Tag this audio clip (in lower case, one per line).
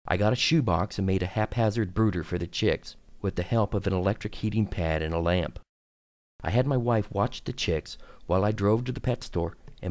speech